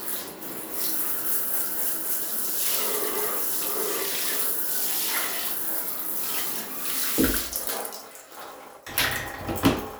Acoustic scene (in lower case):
restroom